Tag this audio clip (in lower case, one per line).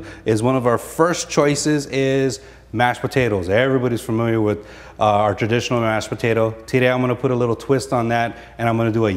speech